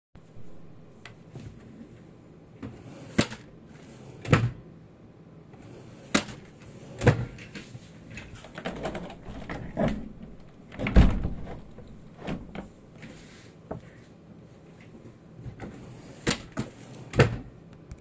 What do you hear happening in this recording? I opened a cupboard or wardrobe and then opened a nearby window. While moving around the room my hand bumped into the table. I then closed the cupboard again.